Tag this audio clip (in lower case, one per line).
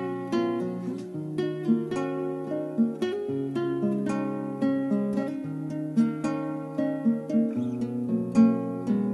strum
music
musical instrument
guitar
plucked string instrument
acoustic guitar